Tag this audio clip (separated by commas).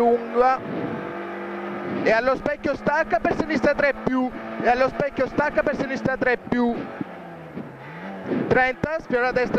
Car, Vehicle, Speech